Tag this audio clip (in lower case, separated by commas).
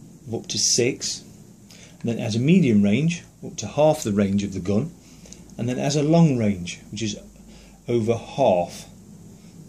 speech, inside a small room